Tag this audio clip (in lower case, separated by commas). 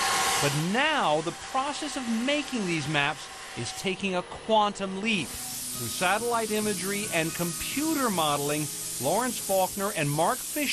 speech